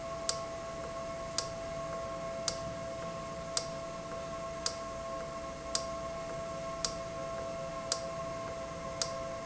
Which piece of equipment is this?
valve